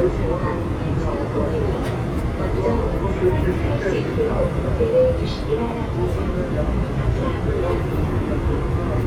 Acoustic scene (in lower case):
subway train